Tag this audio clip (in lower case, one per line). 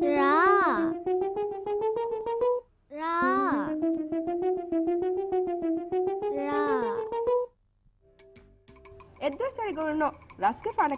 music
child speech
speech
inside a small room